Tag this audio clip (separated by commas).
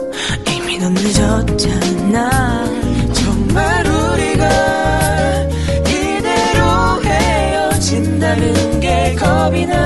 Rhythm and blues, Music, Jazz